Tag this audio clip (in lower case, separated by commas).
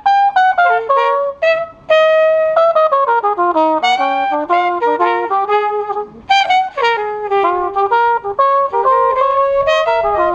brass instrument, playing trumpet, trumpet